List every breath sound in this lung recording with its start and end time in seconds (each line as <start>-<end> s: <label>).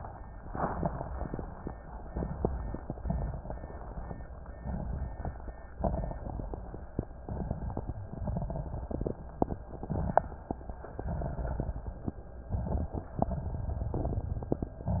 2.07-2.81 s: inhalation
2.07-2.81 s: crackles
3.06-3.80 s: exhalation
3.06-3.80 s: crackles
4.61-5.35 s: inhalation
4.61-5.35 s: crackles
5.81-6.55 s: exhalation
5.81-6.55 s: crackles
7.23-7.97 s: inhalation
7.23-7.97 s: crackles
8.16-9.19 s: exhalation
8.16-9.19 s: crackles
9.73-10.51 s: inhalation
9.73-10.51 s: crackles
11.04-12.01 s: exhalation
11.04-12.01 s: crackles
12.56-13.11 s: inhalation
12.56-13.11 s: crackles
13.28-14.84 s: exhalation
13.28-14.84 s: crackles